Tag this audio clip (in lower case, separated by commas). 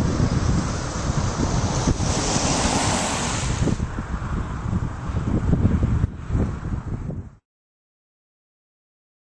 car passing by